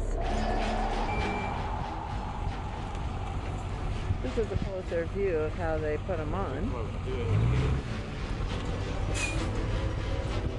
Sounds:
Vehicle, Music, Speech

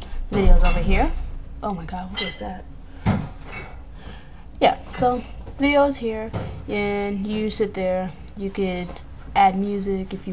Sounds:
Female speech

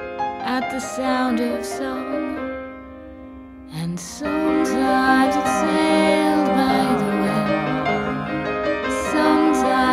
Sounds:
Music

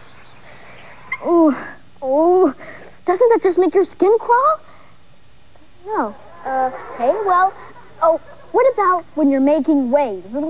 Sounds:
Speech

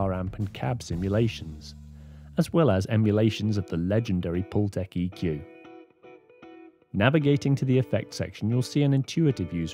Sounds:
Speech, Music

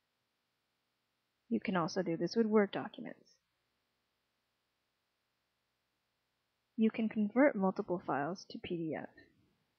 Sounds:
monologue

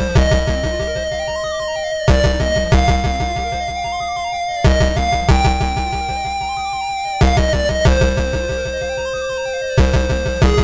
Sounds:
Music, Theme music

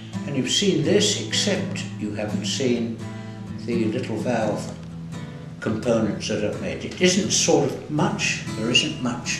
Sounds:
Music, Speech

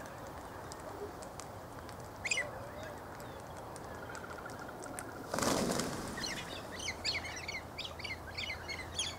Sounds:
Bird, Domestic animals, Speech, outside, rural or natural

